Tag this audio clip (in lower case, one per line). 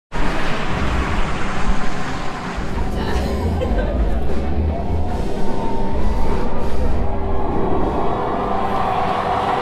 music